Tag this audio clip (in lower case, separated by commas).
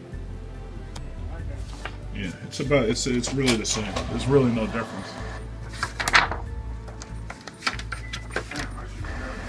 inside a small room, speech, music, printer